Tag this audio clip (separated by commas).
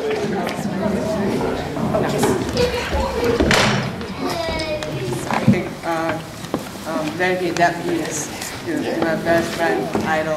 Speech